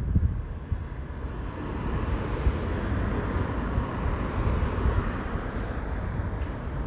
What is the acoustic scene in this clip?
street